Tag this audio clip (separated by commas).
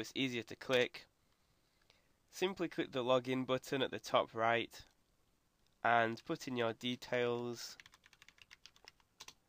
Computer keyboard